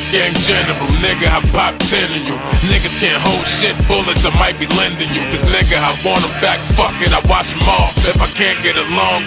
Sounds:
Music

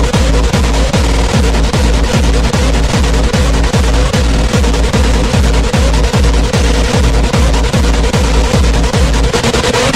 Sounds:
Pop music, Music

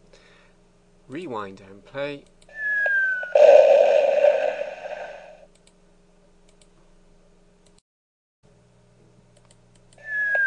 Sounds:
Speech

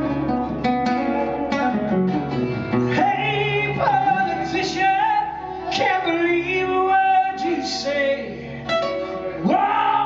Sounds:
Music, Singing, Guitar, Plucked string instrument

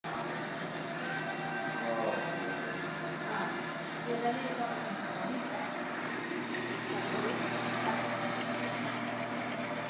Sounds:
lathe spinning

